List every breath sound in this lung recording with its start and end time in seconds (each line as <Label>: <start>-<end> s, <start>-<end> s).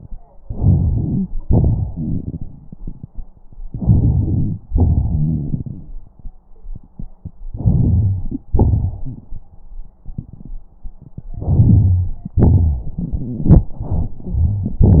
Inhalation: 0.43-1.28 s, 3.69-4.61 s, 7.51-8.44 s, 11.34-12.36 s
Exhalation: 1.42-2.76 s, 4.67-5.95 s, 8.53-9.30 s, 12.41-12.99 s
Wheeze: 4.67-5.64 s
Crackles: 0.42-1.28 s, 1.42-2.76 s